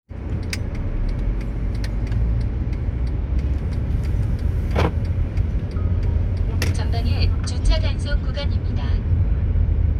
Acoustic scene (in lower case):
car